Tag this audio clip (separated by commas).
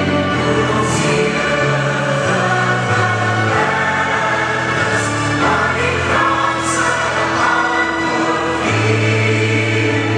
Music